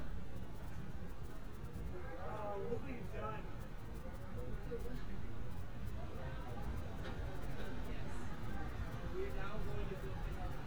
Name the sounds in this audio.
person or small group talking